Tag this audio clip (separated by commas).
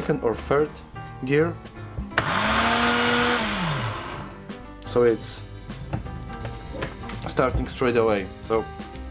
eletric blender running